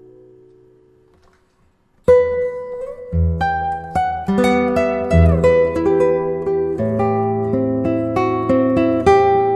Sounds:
plucked string instrument
music
musical instrument
acoustic guitar
guitar

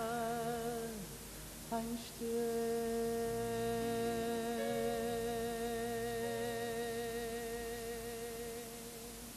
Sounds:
outside, urban or man-made
singing
music

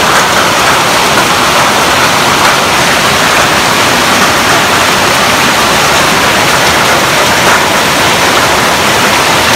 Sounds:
hail

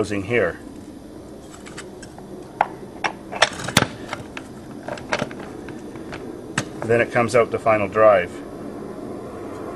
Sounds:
speech

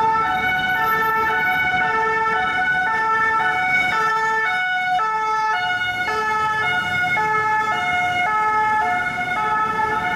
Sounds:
fire truck siren

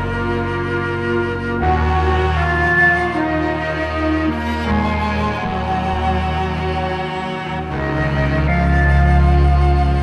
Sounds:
music
cello
fiddle
bowed string instrument

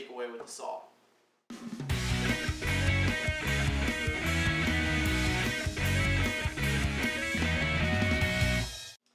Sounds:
music
speech
inside a small room

